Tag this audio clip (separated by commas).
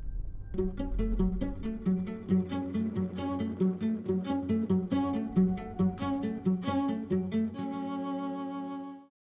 Music